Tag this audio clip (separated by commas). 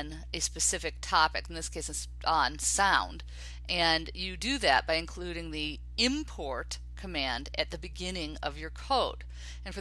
Speech